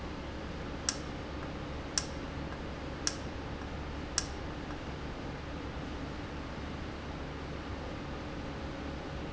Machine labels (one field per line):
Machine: valve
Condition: normal